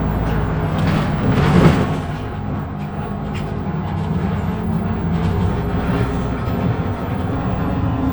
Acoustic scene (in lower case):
bus